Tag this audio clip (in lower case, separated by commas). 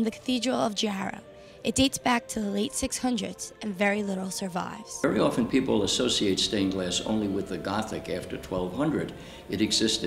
music, speech